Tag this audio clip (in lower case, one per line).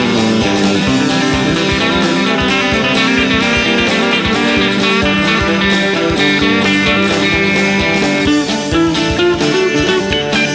music
plucked string instrument
strum
guitar
musical instrument
electric guitar
bass guitar
acoustic guitar
country